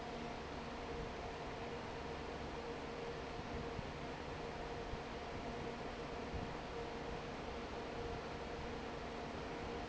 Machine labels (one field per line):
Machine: fan